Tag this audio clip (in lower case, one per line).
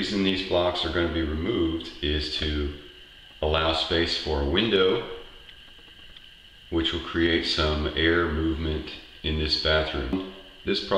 speech